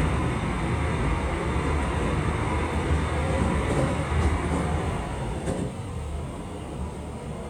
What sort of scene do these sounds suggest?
subway train